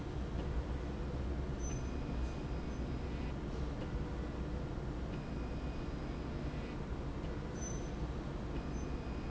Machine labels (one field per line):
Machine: slide rail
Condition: normal